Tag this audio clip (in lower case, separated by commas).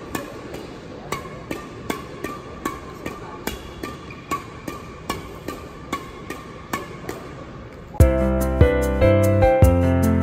playing badminton